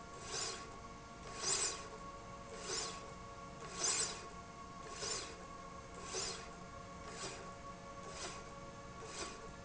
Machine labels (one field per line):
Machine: slide rail